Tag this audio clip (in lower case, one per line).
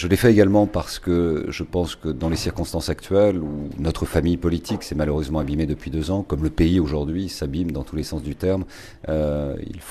speech